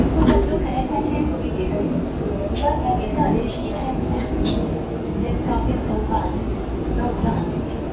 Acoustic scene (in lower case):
subway train